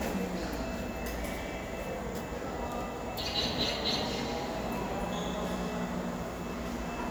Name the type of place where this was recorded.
subway station